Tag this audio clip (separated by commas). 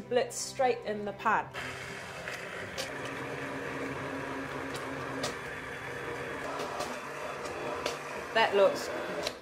Blender, Speech